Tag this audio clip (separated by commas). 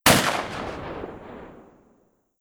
Explosion, Gunshot